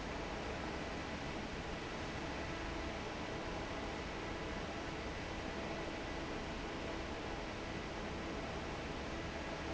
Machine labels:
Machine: fan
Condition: normal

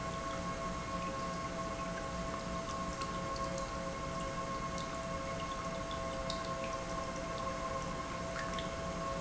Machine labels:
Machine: pump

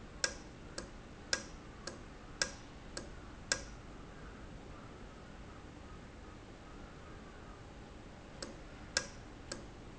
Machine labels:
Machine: valve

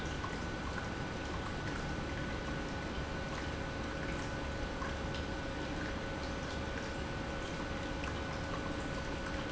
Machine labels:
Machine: pump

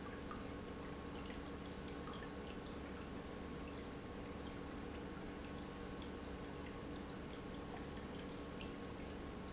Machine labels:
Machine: pump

